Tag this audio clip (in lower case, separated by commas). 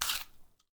chewing